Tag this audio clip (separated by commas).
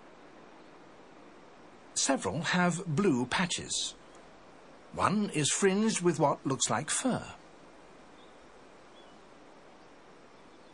Speech